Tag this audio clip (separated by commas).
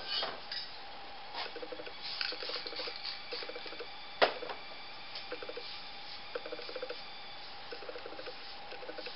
Spray